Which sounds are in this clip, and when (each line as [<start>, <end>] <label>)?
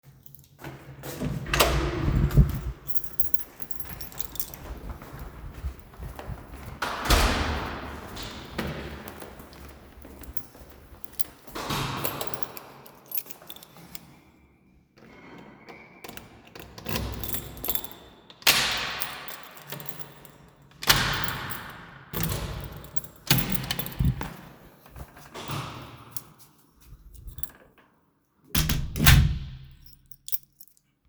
[1.04, 2.63] door
[2.83, 5.39] keys
[5.46, 12.50] footsteps
[6.54, 8.10] door
[10.81, 14.20] keys
[16.01, 17.23] door
[16.51, 18.06] keyboard typing
[17.23, 18.06] keys
[18.35, 19.13] door
[18.97, 20.11] keys
[19.13, 20.12] keyboard typing
[20.78, 26.27] door
[22.00, 24.69] keys
[28.48, 29.75] door
[29.88, 30.86] keys